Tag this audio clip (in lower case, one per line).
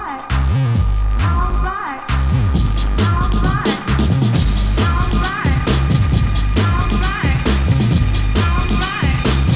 music